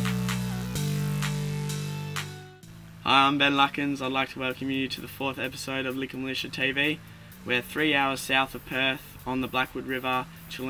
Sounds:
music, speech

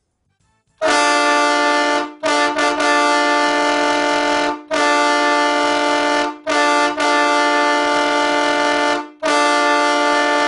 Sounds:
car horn, train horn

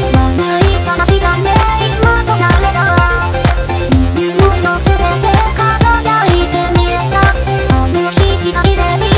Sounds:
music, sampler

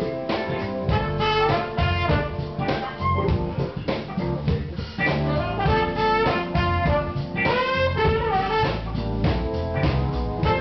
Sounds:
tender music, music, jazz

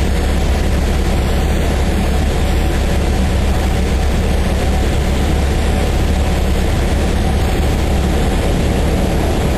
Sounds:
vehicle

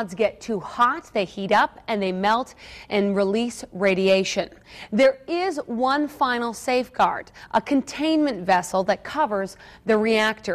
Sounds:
speech

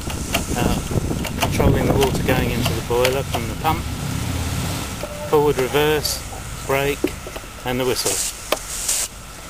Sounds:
speech

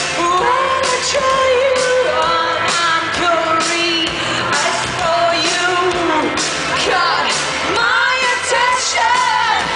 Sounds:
music, exciting music

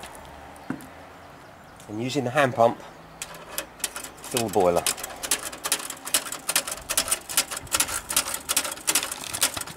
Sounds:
speech

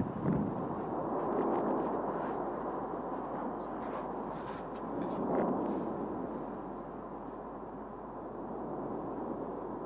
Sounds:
speech, eruption

